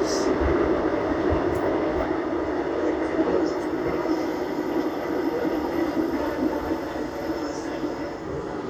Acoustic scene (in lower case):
subway train